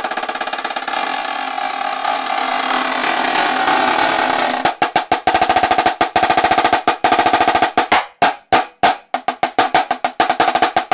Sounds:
playing snare drum

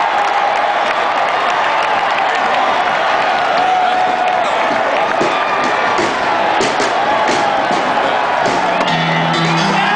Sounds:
clapping
music
speech
applause

